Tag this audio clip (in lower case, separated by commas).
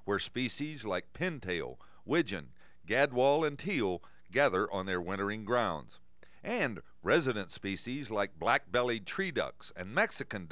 speech